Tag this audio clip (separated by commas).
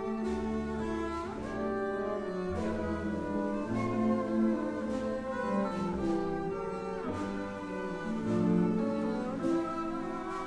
Orchestra, Cello, Music